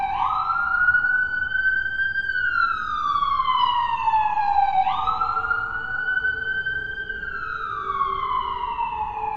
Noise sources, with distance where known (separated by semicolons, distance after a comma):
siren, near